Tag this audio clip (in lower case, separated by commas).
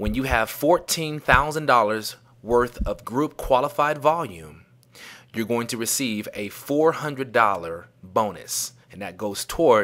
speech